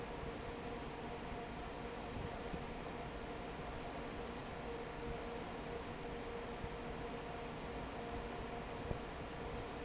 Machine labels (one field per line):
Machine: fan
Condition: normal